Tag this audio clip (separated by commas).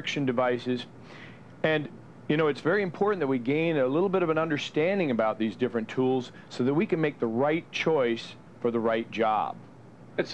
Speech